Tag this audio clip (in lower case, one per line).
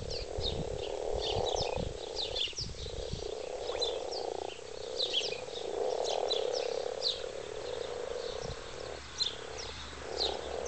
frog